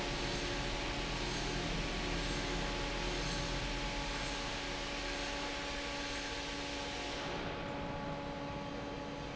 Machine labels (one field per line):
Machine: fan